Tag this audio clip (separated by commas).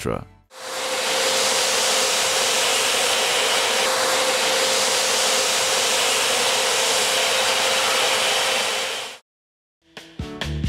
vacuum cleaner cleaning floors